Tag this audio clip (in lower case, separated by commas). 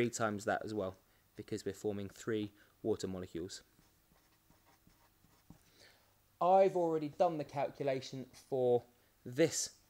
inside a small room, speech, writing